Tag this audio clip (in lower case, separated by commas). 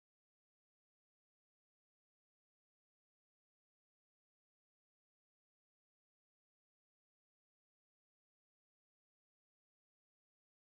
music